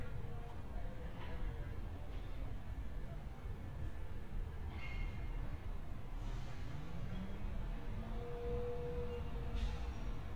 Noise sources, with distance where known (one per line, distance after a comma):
person or small group talking, far